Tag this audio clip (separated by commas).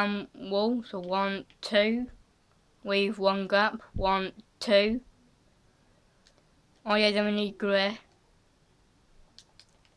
Speech